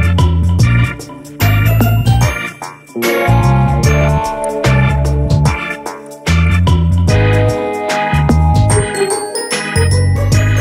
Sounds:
music

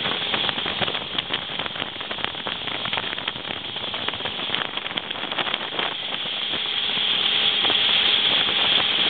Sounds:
vehicle, speedboat, sailing ship, water vehicle

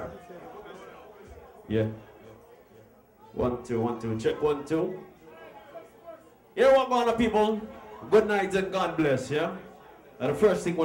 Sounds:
crowd, speech

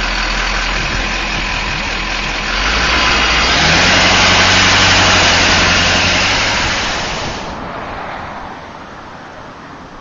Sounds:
vehicle, motor vehicle (road)

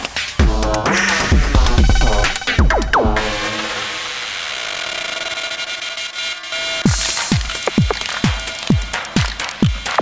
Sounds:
music, drum machine

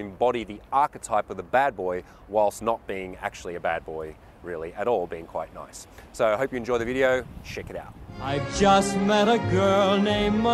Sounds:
speech, music

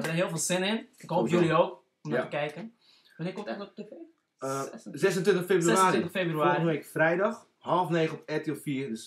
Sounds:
speech

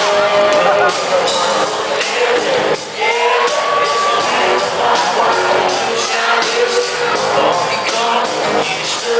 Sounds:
male singing, music

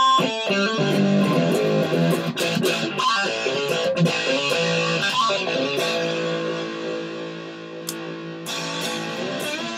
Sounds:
plucked string instrument, musical instrument, guitar, music, strum, electric guitar

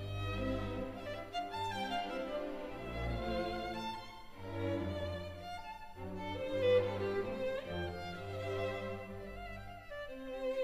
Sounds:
violin, orchestra, music, musical instrument

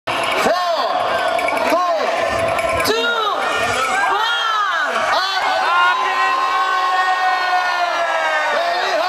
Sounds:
speech

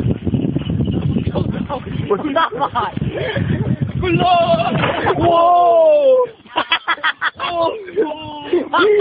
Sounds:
speech

